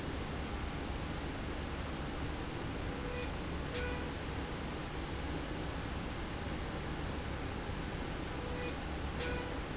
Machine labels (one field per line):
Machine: slide rail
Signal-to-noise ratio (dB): -6 dB